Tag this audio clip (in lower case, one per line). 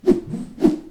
swoosh